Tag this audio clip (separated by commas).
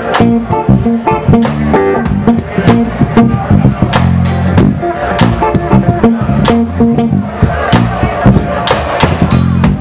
Music